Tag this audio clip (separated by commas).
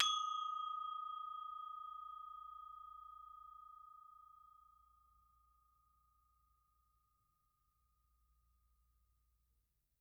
Music, Percussion, Musical instrument